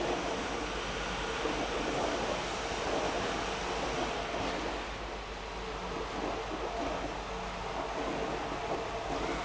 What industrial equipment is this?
pump